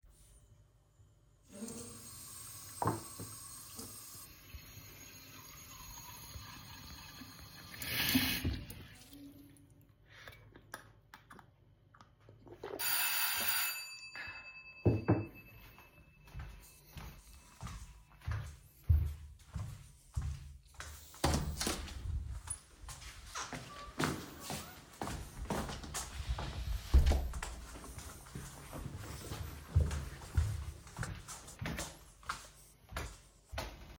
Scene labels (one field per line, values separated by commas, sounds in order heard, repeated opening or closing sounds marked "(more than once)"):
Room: kitchen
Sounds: running water, bell ringing, footsteps, door